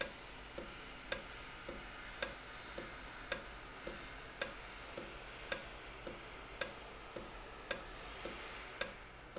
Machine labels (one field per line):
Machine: valve